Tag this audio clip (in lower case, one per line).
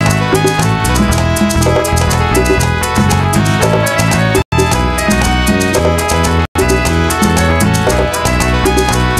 music
soundtrack music